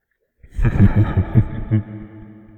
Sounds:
Laughter, Human voice

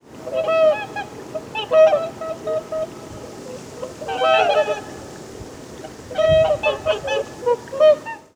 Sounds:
Bird vocalization, Wild animals, Bird, Animal

